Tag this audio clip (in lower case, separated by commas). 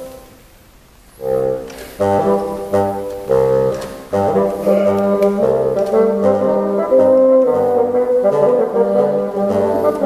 playing bassoon